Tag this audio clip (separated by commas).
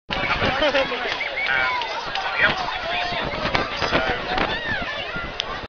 Speech